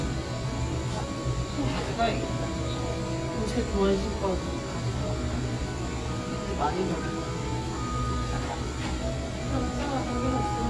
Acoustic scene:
cafe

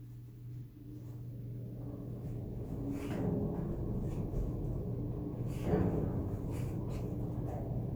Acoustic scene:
elevator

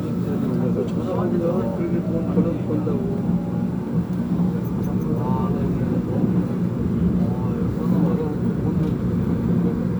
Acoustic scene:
subway train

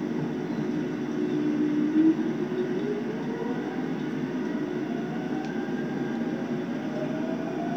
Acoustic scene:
subway train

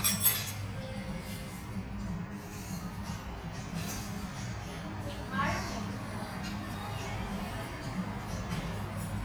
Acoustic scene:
restaurant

